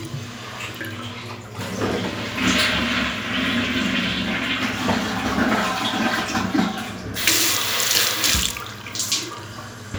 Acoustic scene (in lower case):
restroom